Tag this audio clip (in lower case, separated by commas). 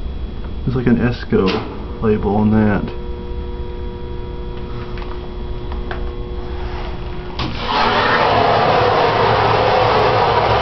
speech